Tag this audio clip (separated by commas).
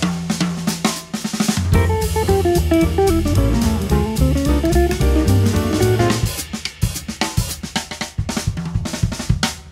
Drum kit, Cymbal, playing drum kit, Musical instrument, Drum, Music, Bass drum